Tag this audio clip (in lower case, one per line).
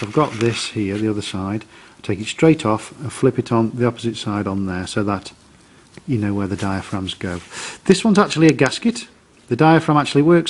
speech